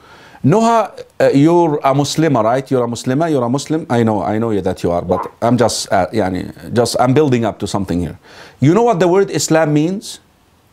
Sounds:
Speech

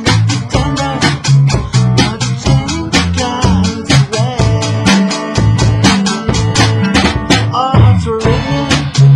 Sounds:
Music

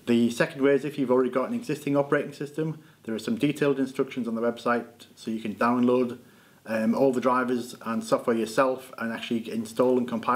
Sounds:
Speech

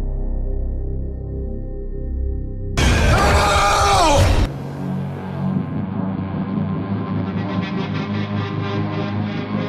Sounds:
Music

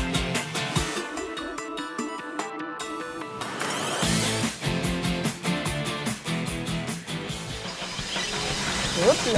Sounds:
Music, Speech

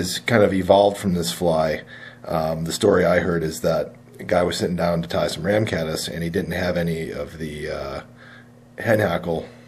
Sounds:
Speech

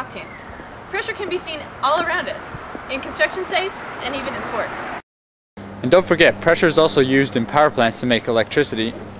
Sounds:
Speech

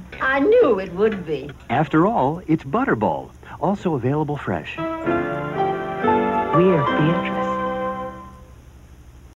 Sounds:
Music, Speech

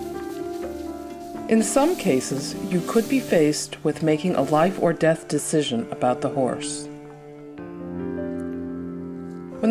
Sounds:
Music, Speech

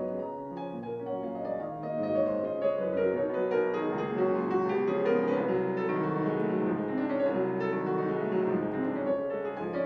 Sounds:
Music, Independent music, Tender music

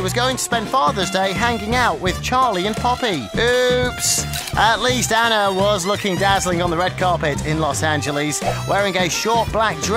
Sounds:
Speech, Music

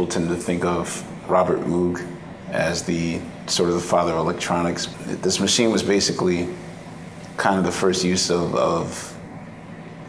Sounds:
Speech

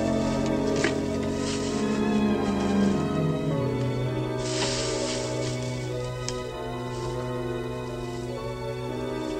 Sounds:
Music

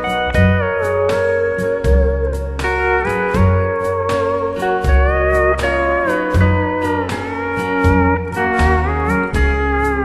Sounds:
Steel guitar, Music, Guitar, Musical instrument, Country

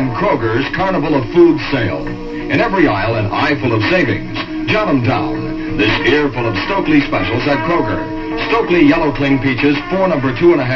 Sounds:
Speech, Music

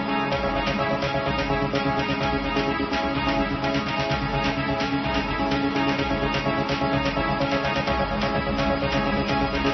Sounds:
Theme music, Music

